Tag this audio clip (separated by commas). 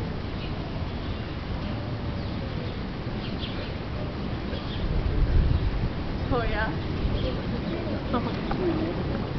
Speech